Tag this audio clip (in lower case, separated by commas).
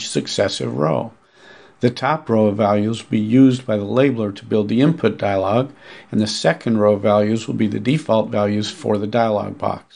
speech